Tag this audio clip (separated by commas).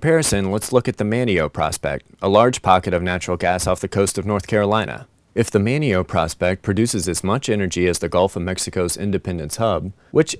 Speech